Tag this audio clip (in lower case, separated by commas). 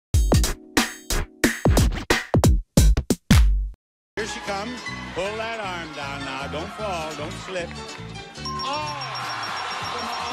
sampler